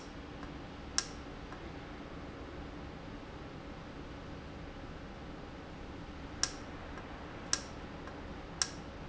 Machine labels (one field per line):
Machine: valve